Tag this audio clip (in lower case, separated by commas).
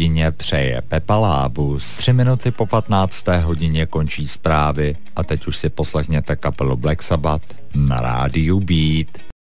speech, music